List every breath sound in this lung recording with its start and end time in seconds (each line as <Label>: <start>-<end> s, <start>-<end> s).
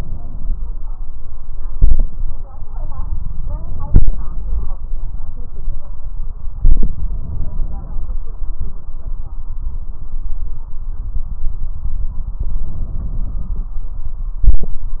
Inhalation: 3.46-4.76 s, 6.67-8.17 s, 12.34-13.74 s
Exhalation: 1.75-2.10 s, 14.48-14.83 s